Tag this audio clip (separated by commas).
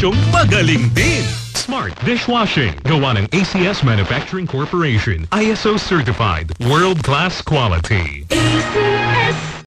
Music, Speech, Radio